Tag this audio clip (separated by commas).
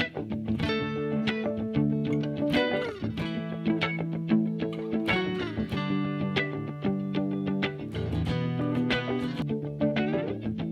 Music